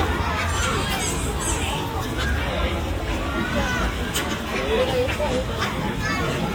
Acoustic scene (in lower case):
park